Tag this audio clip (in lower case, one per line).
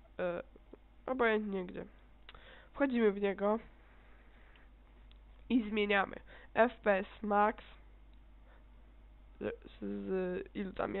speech